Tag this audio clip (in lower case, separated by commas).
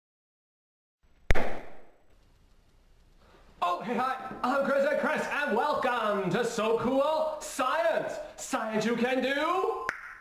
speech, inside a small room